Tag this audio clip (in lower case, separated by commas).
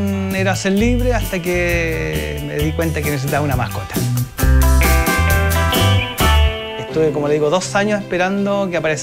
speech, music